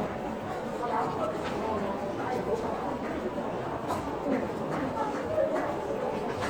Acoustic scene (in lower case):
crowded indoor space